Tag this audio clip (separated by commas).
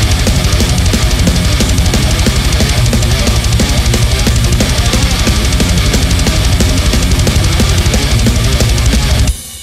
Music, Heavy metal, Dance music